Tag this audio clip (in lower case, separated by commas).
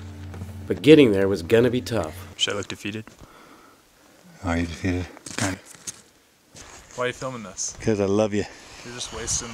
speech